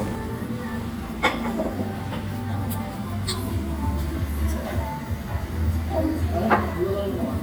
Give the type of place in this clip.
restaurant